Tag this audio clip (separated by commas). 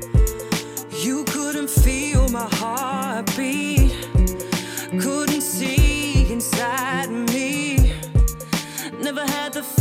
Music, Tender music